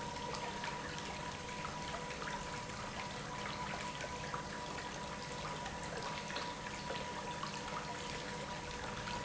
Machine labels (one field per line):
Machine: pump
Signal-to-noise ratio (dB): 0 dB